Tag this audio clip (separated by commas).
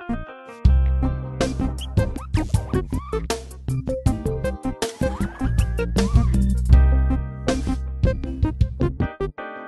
Music